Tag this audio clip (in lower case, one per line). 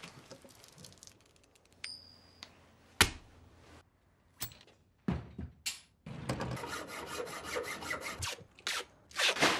crackle
scrape